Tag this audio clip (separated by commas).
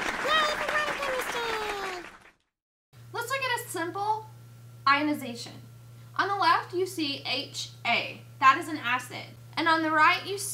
Speech